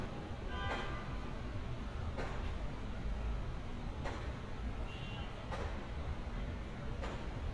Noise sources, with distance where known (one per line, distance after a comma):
car horn, near